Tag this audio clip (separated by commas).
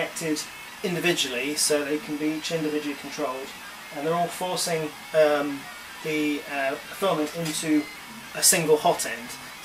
Speech, Printer